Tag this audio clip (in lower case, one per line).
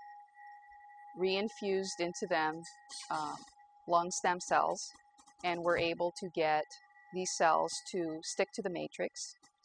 speech